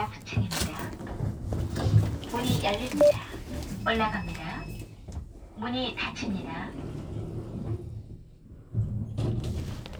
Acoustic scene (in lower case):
elevator